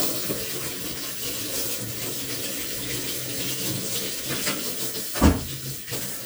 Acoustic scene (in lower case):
kitchen